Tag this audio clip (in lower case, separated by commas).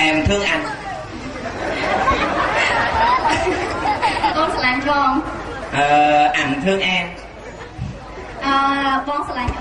chatter, inside a large room or hall, speech